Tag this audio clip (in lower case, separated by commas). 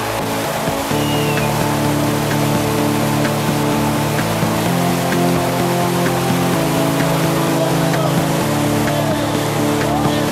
music, vehicle